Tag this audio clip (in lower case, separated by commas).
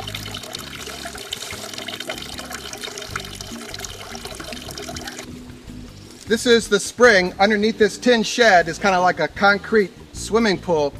speech, music